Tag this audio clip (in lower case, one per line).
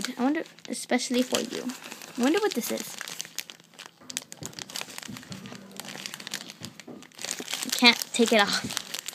speech
inside a small room
crinkling